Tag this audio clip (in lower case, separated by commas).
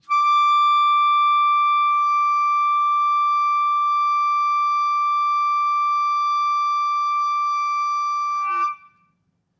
musical instrument, wind instrument, music